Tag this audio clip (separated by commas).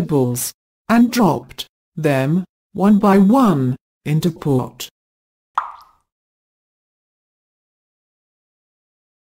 Speech